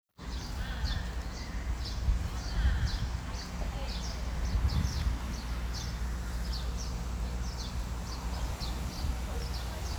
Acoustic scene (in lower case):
residential area